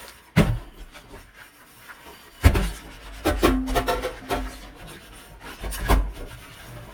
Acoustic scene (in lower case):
kitchen